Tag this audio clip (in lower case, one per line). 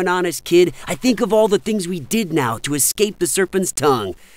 speech